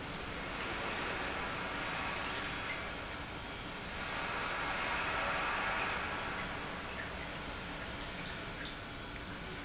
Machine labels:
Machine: pump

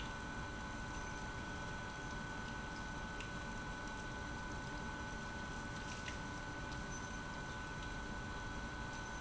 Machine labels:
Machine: pump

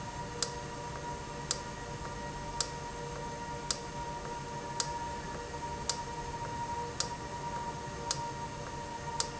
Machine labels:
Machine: valve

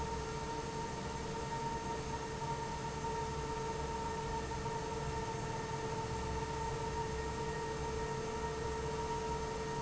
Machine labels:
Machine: fan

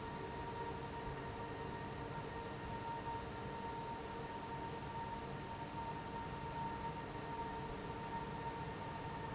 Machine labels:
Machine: fan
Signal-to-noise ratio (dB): 0 dB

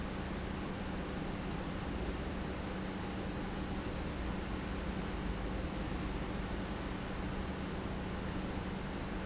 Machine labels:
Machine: pump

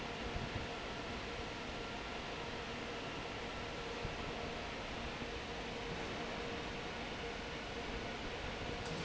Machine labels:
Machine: fan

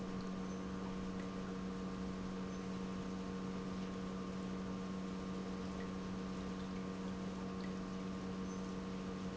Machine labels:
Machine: pump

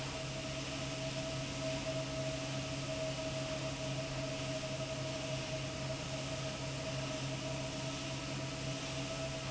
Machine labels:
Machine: fan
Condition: abnormal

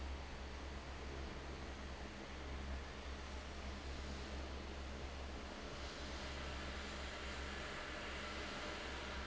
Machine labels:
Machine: fan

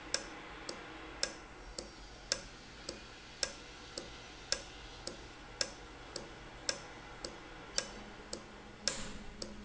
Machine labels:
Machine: valve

